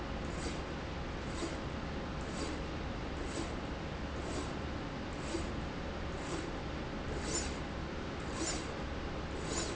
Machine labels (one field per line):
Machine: slide rail